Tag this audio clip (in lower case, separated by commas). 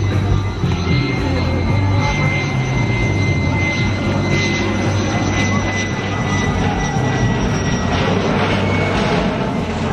airplane flyby